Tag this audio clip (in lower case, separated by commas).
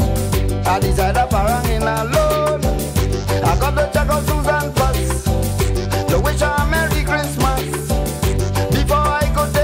music